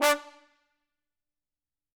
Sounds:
brass instrument, music, musical instrument

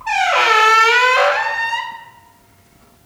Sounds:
squeak

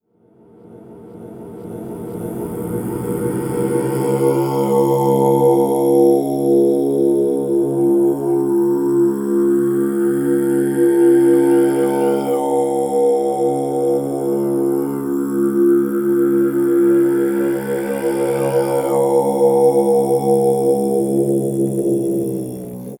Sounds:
human voice, singing

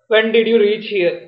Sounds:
human voice, speech

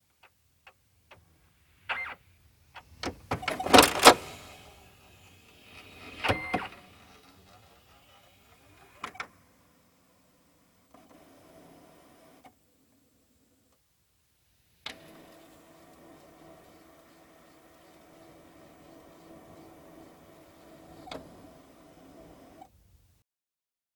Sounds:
mechanisms, printer

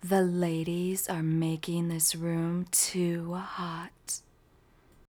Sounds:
speech, woman speaking, human voice

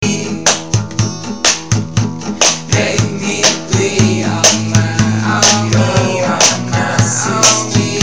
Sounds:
guitar, plucked string instrument, acoustic guitar, human voice, music, musical instrument

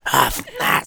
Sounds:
human voice, speech

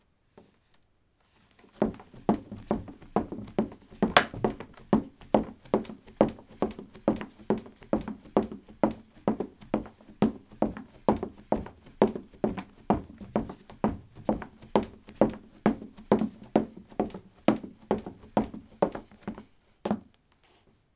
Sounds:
run

